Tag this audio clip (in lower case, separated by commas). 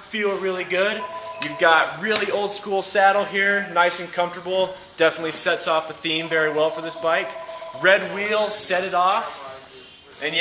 speech